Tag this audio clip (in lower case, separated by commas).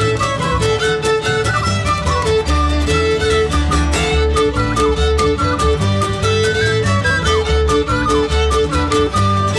violin, musical instrument, music